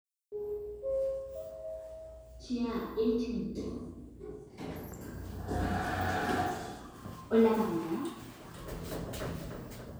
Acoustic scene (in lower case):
elevator